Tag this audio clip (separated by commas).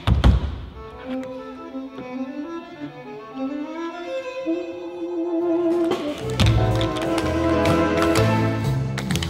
tap dancing